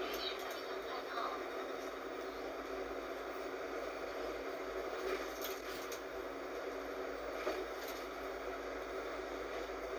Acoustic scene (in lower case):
bus